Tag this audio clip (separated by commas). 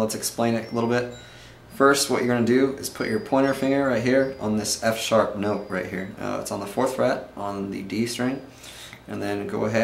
Speech, Strum, Musical instrument, Plucked string instrument